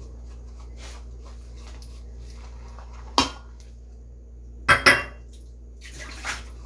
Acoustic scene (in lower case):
kitchen